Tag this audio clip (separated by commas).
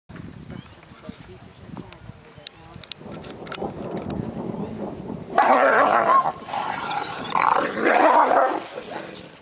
Speech, Animal, outside, rural or natural, Dog, pets